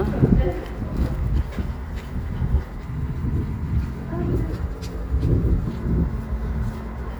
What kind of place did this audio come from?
residential area